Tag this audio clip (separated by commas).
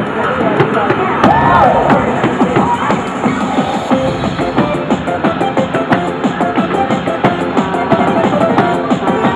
Music